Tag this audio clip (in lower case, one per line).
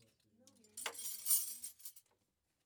home sounds
cutlery